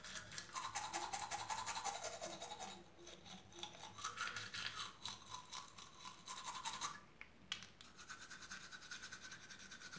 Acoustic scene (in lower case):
restroom